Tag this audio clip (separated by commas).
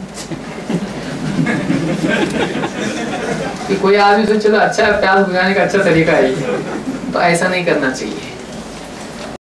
Speech